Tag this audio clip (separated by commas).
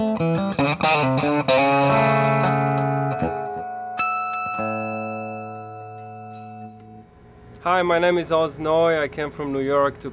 Speech, Guitar, Music, Musical instrument, inside a small room, Plucked string instrument